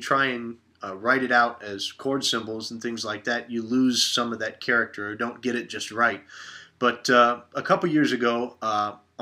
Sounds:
Speech

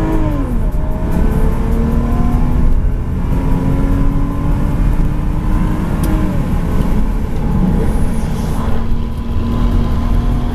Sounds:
Car, Medium engine (mid frequency), Vehicle, vroom

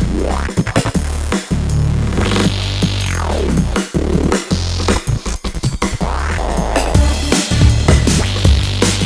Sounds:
Music

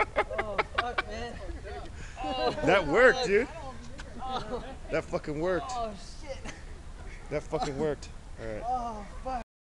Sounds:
Speech

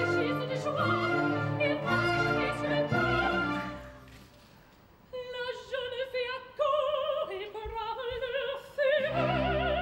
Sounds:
Music

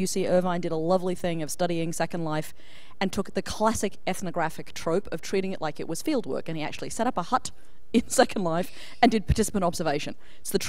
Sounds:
Speech

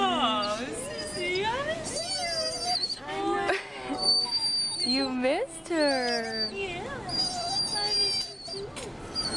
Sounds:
Speech

